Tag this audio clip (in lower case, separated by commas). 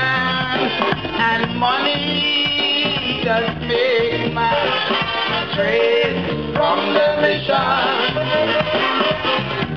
music